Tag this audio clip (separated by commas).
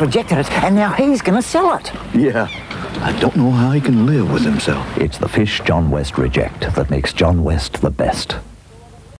Speech